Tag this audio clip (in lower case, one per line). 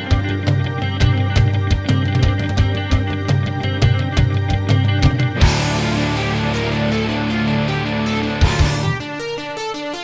progressive rock
music